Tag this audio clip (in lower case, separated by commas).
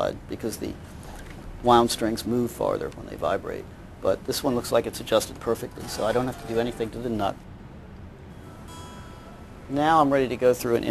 music, strum, speech, plucked string instrument